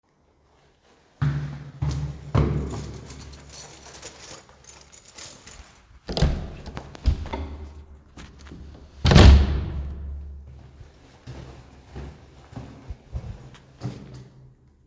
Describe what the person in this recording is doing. I made a couple of steps. Took my keys out of the pocket. Opened the door and started walking again. The door closed behind me.